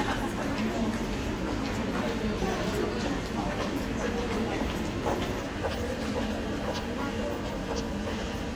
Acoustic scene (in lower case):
crowded indoor space